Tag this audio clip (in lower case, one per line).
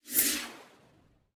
swoosh